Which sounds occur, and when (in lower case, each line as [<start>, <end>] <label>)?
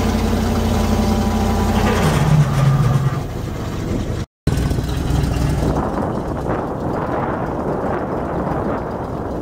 [0.00, 4.22] wind
[0.00, 4.23] heavy engine (low frequency)
[1.67, 3.14] mechanisms
[4.42, 9.41] wind
[4.43, 9.41] heavy engine (low frequency)
[5.47, 9.41] wind noise (microphone)